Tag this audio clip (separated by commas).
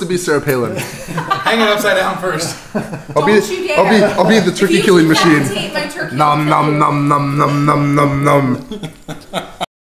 Speech